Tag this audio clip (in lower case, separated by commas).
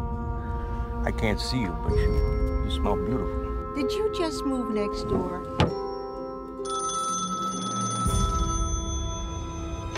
music, inside a small room, speech, outside, urban or man-made